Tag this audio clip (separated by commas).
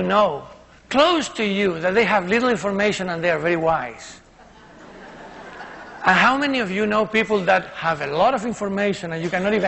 man speaking, Speech